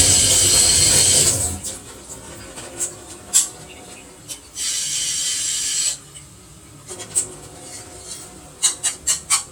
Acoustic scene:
kitchen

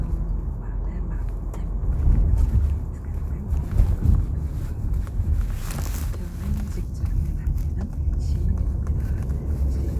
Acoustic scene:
car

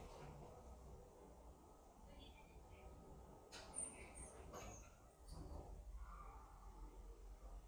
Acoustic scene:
elevator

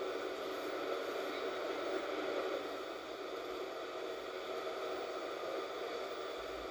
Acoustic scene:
bus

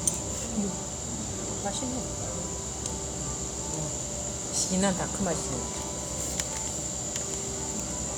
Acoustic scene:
cafe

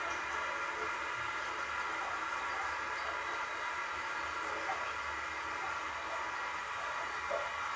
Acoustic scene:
restroom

